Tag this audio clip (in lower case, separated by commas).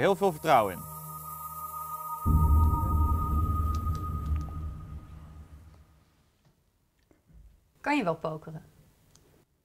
speech, music